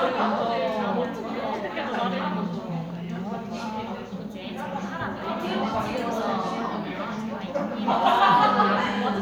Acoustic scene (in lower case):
crowded indoor space